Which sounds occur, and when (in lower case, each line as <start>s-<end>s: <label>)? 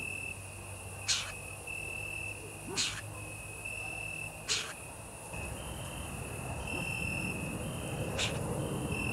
0.0s-9.1s: background noise
0.0s-9.1s: cricket
1.0s-1.3s: bird vocalization
2.7s-3.1s: bird vocalization
4.5s-4.7s: bird vocalization
6.6s-6.8s: animal
8.1s-8.4s: bird vocalization